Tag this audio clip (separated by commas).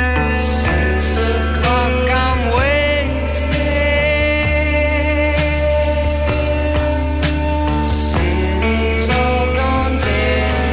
Music